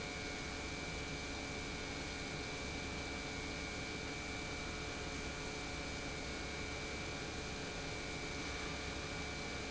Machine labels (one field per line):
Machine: pump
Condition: normal